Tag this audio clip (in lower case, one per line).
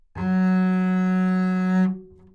bowed string instrument
music
musical instrument